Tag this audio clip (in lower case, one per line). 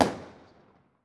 explosion
fireworks